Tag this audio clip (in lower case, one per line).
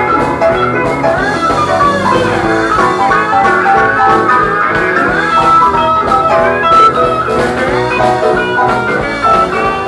music
musical instrument
plucked string instrument
guitar